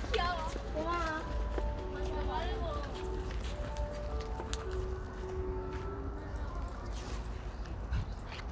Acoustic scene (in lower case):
residential area